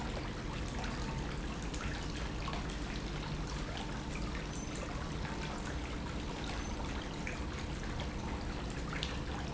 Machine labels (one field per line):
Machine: pump